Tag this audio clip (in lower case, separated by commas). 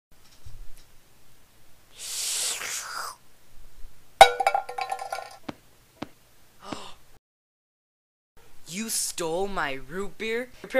inside a small room, speech